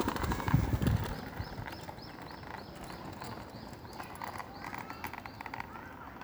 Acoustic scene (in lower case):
park